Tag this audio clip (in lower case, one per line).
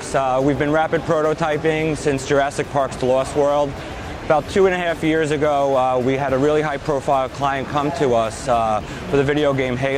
speech